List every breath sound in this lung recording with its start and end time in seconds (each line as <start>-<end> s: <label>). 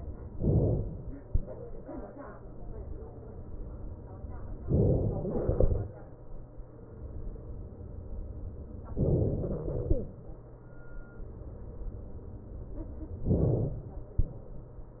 0.39-1.25 s: inhalation
4.69-5.44 s: inhalation
8.99-9.74 s: inhalation
13.27-13.88 s: inhalation